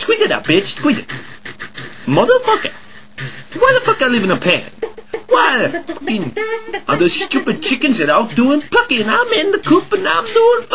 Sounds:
Speech

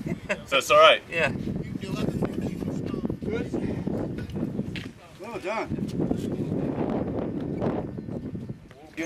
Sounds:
Speech

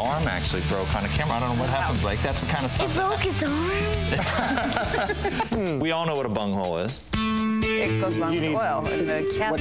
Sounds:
Music, Speech

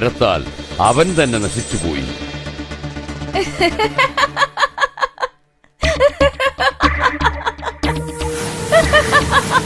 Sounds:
Speech, Music, inside a large room or hall

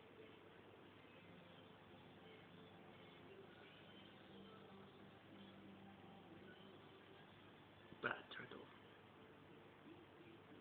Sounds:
Speech

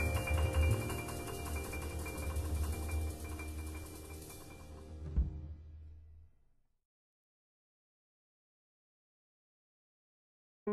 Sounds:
Music

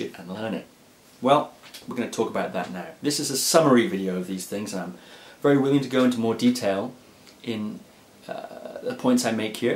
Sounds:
Speech

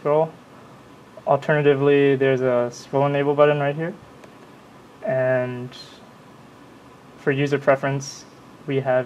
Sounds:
Speech

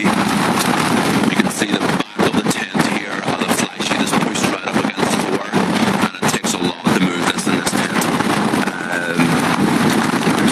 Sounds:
Speech

